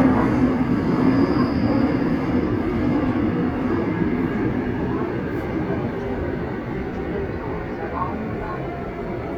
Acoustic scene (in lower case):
subway train